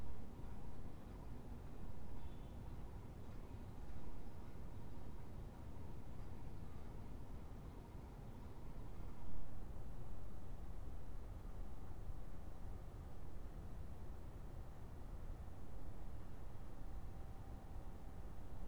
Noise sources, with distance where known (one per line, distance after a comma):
background noise